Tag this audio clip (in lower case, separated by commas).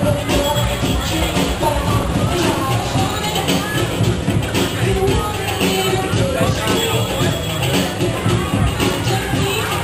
speech, music